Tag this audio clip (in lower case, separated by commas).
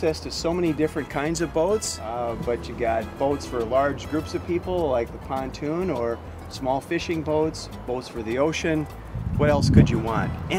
music, speech